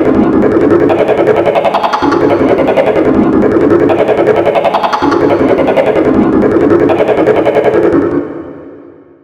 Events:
[0.00, 9.23] sound effect
[0.00, 9.23] video game sound

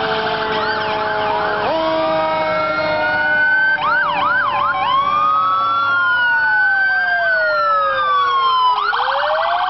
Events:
[0.00, 9.65] fire engine
[0.49, 1.05] speech
[1.07, 1.39] air horn
[1.55, 1.90] air horn
[2.18, 2.47] air horn
[2.50, 3.10] speech
[3.52, 7.51] speech
[7.99, 8.45] car horn
[8.62, 9.65] car horn

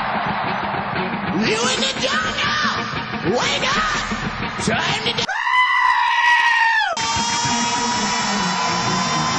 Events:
[0.00, 1.40] cheering
[0.00, 5.22] music
[1.39, 2.91] male singing
[3.19, 4.15] male singing
[3.96, 4.98] cheering
[4.55, 5.23] man speaking
[5.24, 6.95] screaming
[6.92, 9.35] music

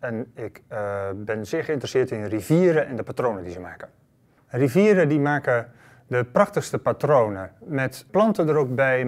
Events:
[0.00, 3.80] woman speaking
[0.00, 9.05] background noise
[4.17, 4.48] breathing
[4.46, 5.63] woman speaking
[5.69, 5.98] breathing
[6.05, 7.41] woman speaking
[7.59, 9.05] woman speaking

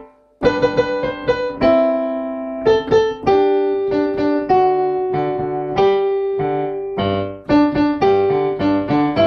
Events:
[0.00, 9.25] music

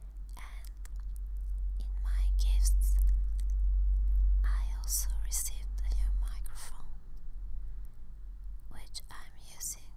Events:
[0.00, 0.34] generic impact sounds
[0.00, 9.95] background noise
[0.24, 0.69] whispering
[0.57, 0.69] generic impact sounds
[0.79, 1.22] generic impact sounds
[1.33, 1.62] generic impact sounds
[1.74, 2.92] whispering
[2.83, 3.12] generic impact sounds
[3.22, 3.57] generic impact sounds
[3.89, 4.31] generic impact sounds
[4.39, 5.61] whispering
[4.75, 4.87] generic impact sounds
[5.73, 5.81] generic impact sounds
[5.75, 6.90] whispering
[7.12, 7.22] generic impact sounds
[8.69, 9.95] whispering
[8.87, 9.06] generic impact sounds

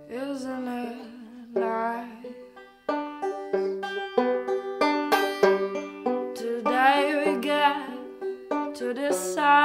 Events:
[0.00, 2.52] female singing
[0.00, 9.64] music
[3.50, 3.79] breathing
[6.30, 8.05] female singing
[8.77, 9.64] female singing

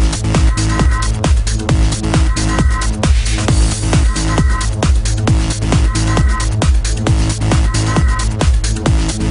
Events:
[0.01, 9.30] music

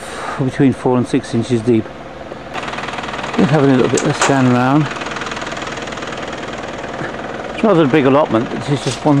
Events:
[0.00, 0.35] breathing
[0.00, 9.20] engine
[0.00, 9.20] wind
[0.34, 1.78] male speech
[3.39, 4.82] male speech
[3.93, 4.30] generic impact sounds
[6.97, 7.08] generic impact sounds
[7.60, 9.20] male speech

